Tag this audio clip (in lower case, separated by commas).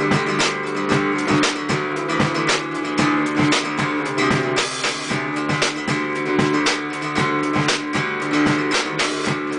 music